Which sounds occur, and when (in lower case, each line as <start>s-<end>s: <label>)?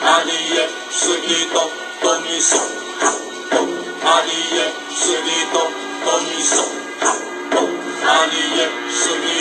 0.0s-0.7s: male singing
0.0s-9.4s: music
0.9s-1.7s: male singing
1.9s-2.6s: male singing
2.9s-3.2s: male singing
3.4s-3.6s: male singing
4.0s-4.7s: male singing
5.0s-5.7s: male singing
6.0s-6.7s: male singing
7.0s-7.2s: male singing
7.5s-7.7s: male singing
8.0s-8.7s: male singing
8.9s-9.4s: male singing